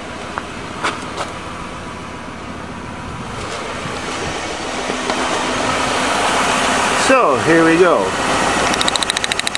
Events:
0.0s-9.5s: medium engine (mid frequency)
0.3s-0.4s: tick
0.8s-1.0s: generic impact sounds
1.1s-1.3s: generic impact sounds
3.9s-4.0s: tick
4.8s-5.1s: generic impact sounds
7.0s-8.1s: male speech
8.6s-9.5s: rattle

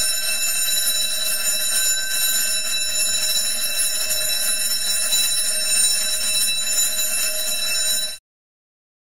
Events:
0.0s-8.2s: alarm

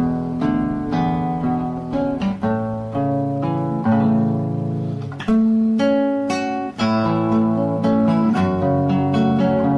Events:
0.0s-9.7s: mechanisms
0.0s-9.7s: music

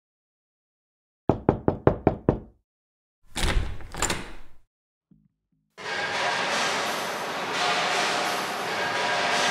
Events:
1.3s-2.7s: knock
3.9s-4.5s: slam
5.1s-9.5s: music
5.1s-9.5s: background noise

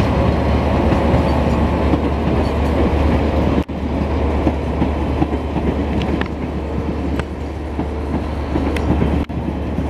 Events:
0.0s-9.8s: train
1.2s-1.6s: generic impact sounds
2.4s-2.7s: generic impact sounds
6.0s-6.3s: generic impact sounds
7.1s-7.3s: generic impact sounds
8.5s-8.8s: generic impact sounds
9.2s-9.3s: generic impact sounds

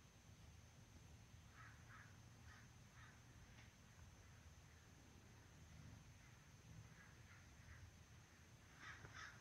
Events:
0.0s-9.4s: background noise
3.5s-3.7s: tick

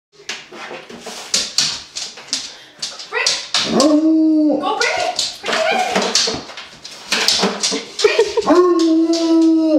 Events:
0.1s-9.7s: background noise
0.2s-0.3s: generic impact sounds
0.4s-1.8s: generic impact sounds
1.9s-2.2s: generic impact sounds
2.3s-2.5s: generic impact sounds
2.3s-2.7s: breathing
2.8s-3.0s: generic impact sounds
3.1s-3.2s: woman speaking
3.2s-3.9s: generic impact sounds
3.6s-4.6s: howl
4.5s-5.1s: woman speaking
4.8s-7.8s: generic impact sounds
5.4s-6.1s: woman speaking
7.9s-8.2s: woman speaking
7.9s-8.5s: laughter
8.1s-9.5s: generic impact sounds
8.3s-9.7s: howl

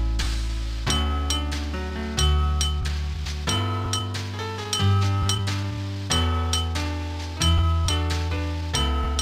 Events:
0.0s-9.2s: music

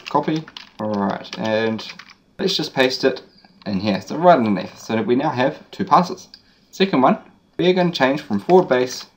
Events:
0.0s-2.1s: computer keyboard
0.0s-9.1s: background noise
0.0s-0.5s: male speech
0.8s-1.9s: male speech
2.4s-3.2s: male speech
3.2s-3.6s: bird song
3.5s-3.6s: tick
3.6s-6.3s: male speech
5.8s-6.0s: tick
6.3s-6.4s: tick
6.4s-6.7s: bird song
6.8s-7.3s: male speech
7.6s-9.1s: male speech
8.3s-9.1s: computer keyboard

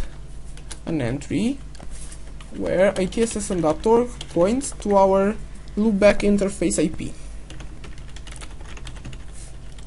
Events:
0.0s-9.8s: mechanisms
0.6s-0.9s: computer keyboard
0.8s-1.7s: man speaking
1.7s-2.6s: computer keyboard
2.5s-4.1s: man speaking
2.9s-4.9s: computer keyboard
4.3s-5.4s: man speaking
5.8s-7.1s: man speaking
6.1s-6.3s: computer keyboard
7.4s-9.8s: computer keyboard

